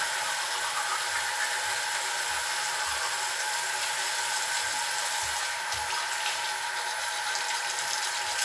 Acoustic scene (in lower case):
restroom